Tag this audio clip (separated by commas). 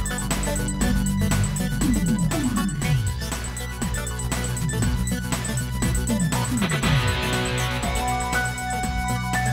Electronic music, Music